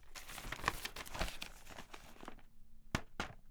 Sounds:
tap

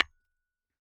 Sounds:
tap
hammer
glass
tools

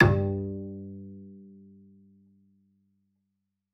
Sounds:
musical instrument
music
bowed string instrument

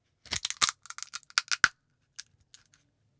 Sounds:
crackle
crushing

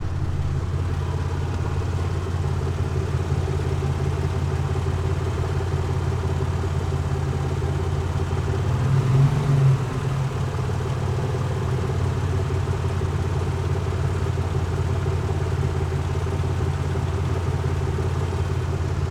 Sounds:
accelerating
engine
idling
vehicle
car
motor vehicle (road)

